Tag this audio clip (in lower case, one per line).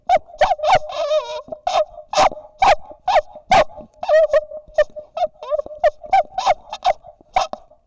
domestic animals
dog
animal
bark